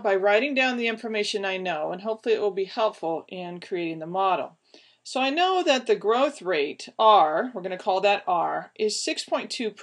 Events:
[0.00, 4.59] woman speaking
[0.00, 9.82] mechanisms
[4.64, 5.00] breathing
[5.07, 9.82] woman speaking

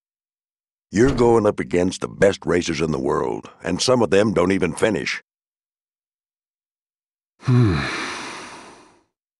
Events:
[0.89, 2.03] male speech
[0.99, 1.21] generic impact sounds
[2.17, 3.38] male speech
[3.61, 5.18] male speech
[4.64, 4.89] generic impact sounds
[7.37, 9.10] sigh

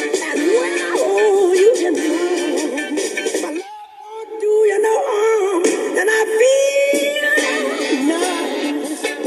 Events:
[0.00, 9.25] music
[0.02, 9.25] synthetic singing

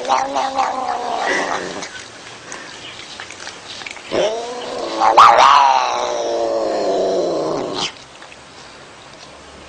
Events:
[0.00, 1.91] growling
[0.00, 9.65] mechanisms
[1.89, 2.06] animal
[2.22, 3.23] animal
[3.33, 3.56] animal
[3.62, 4.00] animal
[4.11, 7.91] growling
[7.95, 8.44] animal
[8.52, 8.80] surface contact
[8.99, 9.28] generic impact sounds

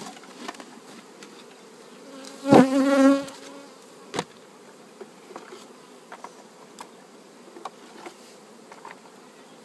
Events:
[0.00, 9.64] bee or wasp
[0.00, 9.64] rustle
[2.13, 3.86] buzz
[2.46, 2.76] tap
[8.69, 8.98] generic impact sounds
[9.13, 9.64] bird vocalization

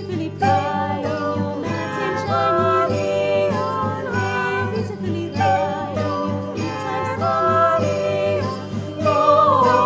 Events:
[0.00, 8.54] choir
[0.00, 9.85] music
[8.97, 9.85] choir

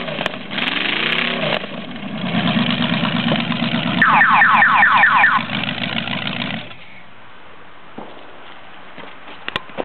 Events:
[0.00, 0.27] revving
[0.00, 6.77] medium engine (mid frequency)
[0.00, 9.83] wind
[0.53, 1.67] revving
[4.03, 5.48] honking
[7.97, 8.21] generic impact sounds
[8.39, 8.61] generic impact sounds
[9.02, 9.80] generic impact sounds

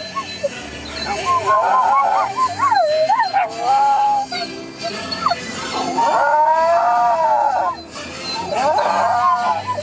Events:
[0.00, 0.49] dog
[0.00, 9.82] choir
[0.00, 9.82] music
[0.94, 4.25] howl
[4.25, 4.51] dog
[4.71, 5.41] dog
[5.53, 7.77] howl
[8.31, 9.82] howl

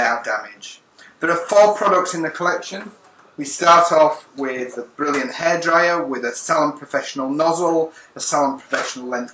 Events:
[0.00, 0.83] man speaking
[0.00, 9.33] background noise
[0.99, 1.19] breathing
[1.24, 2.95] man speaking
[3.00, 3.05] generic impact sounds
[3.18, 3.24] generic impact sounds
[3.39, 4.24] man speaking
[4.36, 4.44] generic impact sounds
[4.38, 4.88] man speaking
[4.99, 7.89] man speaking
[5.09, 5.23] generic impact sounds
[7.96, 8.12] breathing
[8.19, 9.33] man speaking
[8.68, 8.81] generic impact sounds

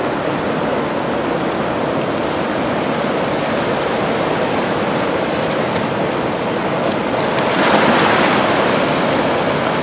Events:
[0.00, 9.82] stream
[0.22, 0.32] tick
[5.72, 5.84] tick
[6.91, 7.02] tick
[7.22, 7.57] tick

